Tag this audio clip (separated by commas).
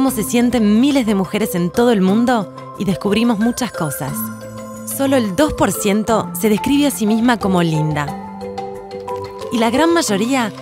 Music, Speech